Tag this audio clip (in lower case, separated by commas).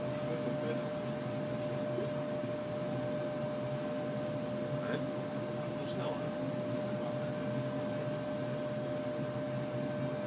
speech